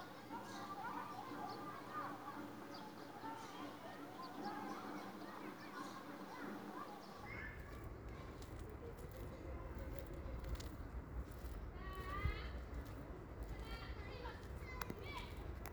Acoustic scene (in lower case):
residential area